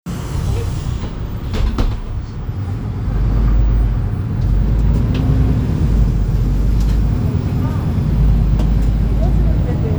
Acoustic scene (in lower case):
bus